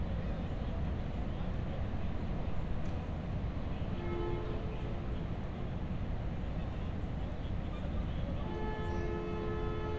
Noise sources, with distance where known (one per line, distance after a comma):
car horn, far